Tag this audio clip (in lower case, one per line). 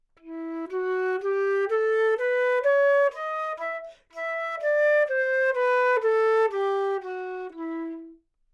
musical instrument
wind instrument
music